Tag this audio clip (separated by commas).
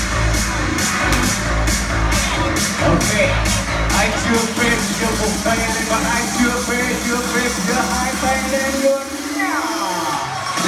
Pop music, Music, Dance music